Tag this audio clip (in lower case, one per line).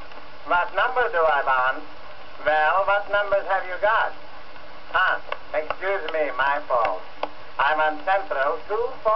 speech